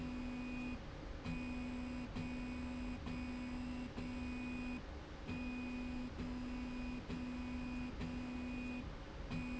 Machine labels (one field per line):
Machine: slide rail